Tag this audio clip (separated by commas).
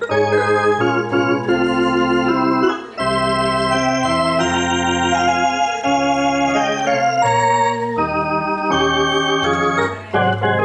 Music, Electronic organ, Organ, playing electronic organ